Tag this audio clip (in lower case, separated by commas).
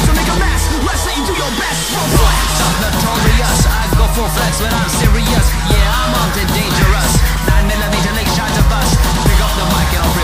music